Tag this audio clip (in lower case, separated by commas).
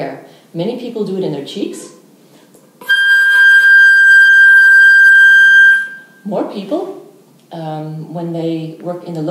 woodwind instrument, music, flute, speech, musical instrument